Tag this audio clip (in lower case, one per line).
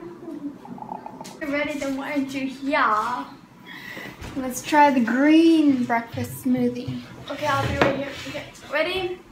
female speech
speech